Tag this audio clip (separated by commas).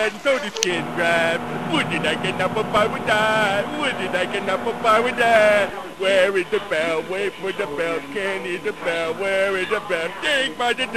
Speech